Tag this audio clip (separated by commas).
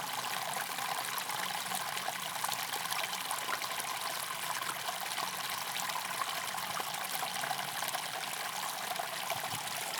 Water, Stream